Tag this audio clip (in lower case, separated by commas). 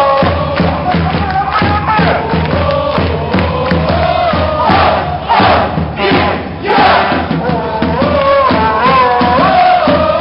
crowd